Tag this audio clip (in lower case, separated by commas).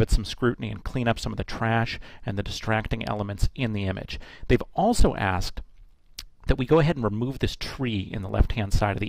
speech